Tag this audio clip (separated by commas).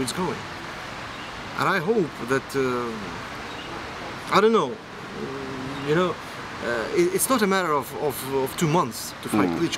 Speech, outside, urban or man-made